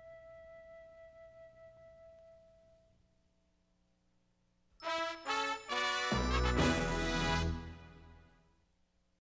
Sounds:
music

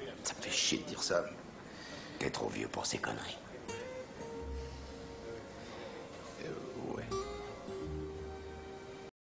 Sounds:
music, speech

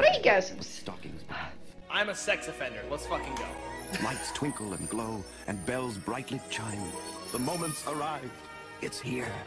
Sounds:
music, speech

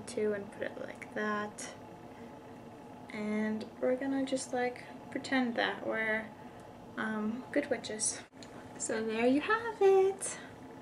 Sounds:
speech, inside a small room

